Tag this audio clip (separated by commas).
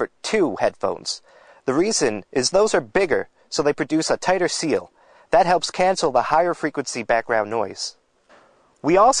Speech